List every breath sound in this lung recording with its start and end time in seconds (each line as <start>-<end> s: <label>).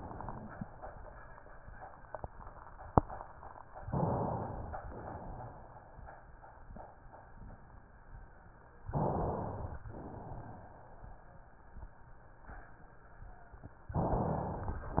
3.85-4.80 s: inhalation
4.81-6.04 s: exhalation
8.87-9.83 s: inhalation
9.89-11.12 s: exhalation